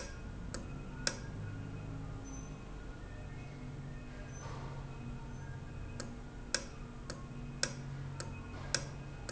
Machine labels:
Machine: valve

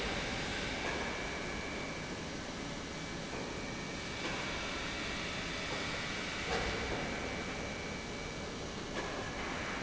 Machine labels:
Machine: pump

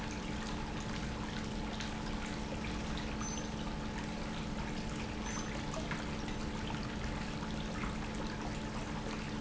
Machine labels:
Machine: pump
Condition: normal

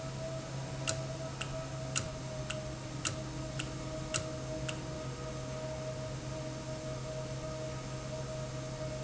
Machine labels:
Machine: valve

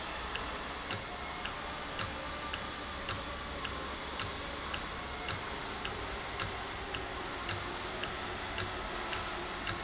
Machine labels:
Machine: valve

